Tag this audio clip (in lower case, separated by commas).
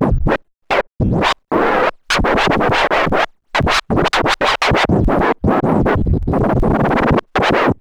music, scratching (performance technique), musical instrument